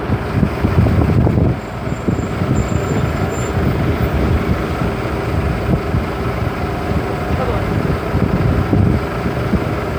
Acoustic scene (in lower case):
street